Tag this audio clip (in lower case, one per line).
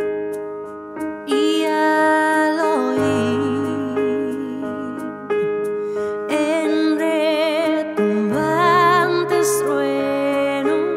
music